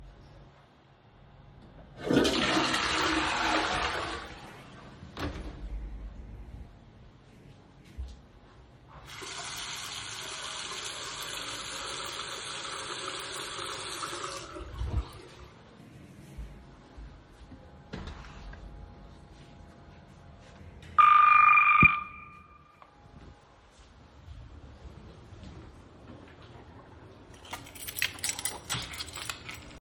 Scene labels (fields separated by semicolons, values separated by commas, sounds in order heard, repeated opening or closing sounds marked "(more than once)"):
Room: lavatory, bathroom, hallway; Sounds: toilet flushing, door, footsteps, running water, bell ringing, keys